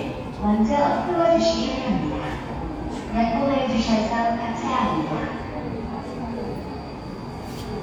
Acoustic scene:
subway station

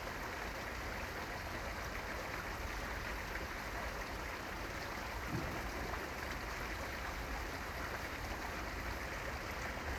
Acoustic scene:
park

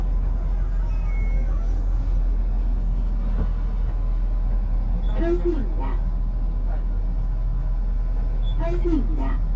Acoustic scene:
bus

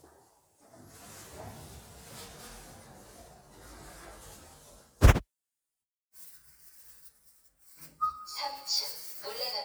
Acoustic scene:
elevator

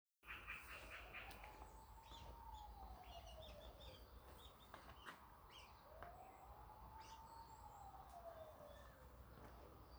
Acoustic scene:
park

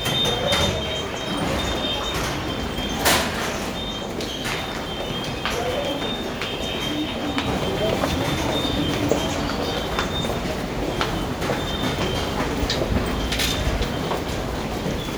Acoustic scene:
subway station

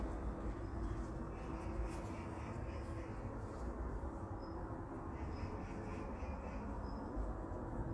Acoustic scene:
park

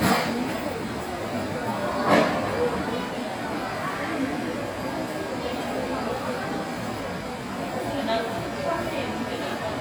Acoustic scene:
crowded indoor space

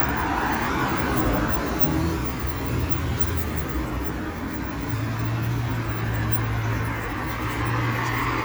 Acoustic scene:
street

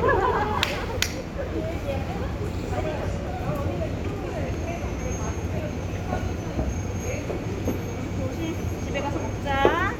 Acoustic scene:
residential area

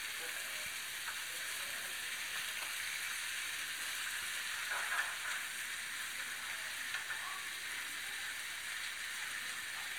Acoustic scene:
restaurant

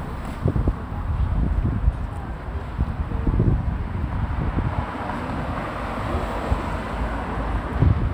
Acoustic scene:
street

